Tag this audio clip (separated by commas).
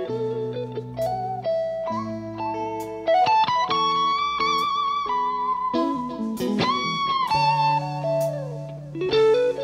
Music, Acoustic guitar, Musical instrument, Guitar, Plucked string instrument, playing acoustic guitar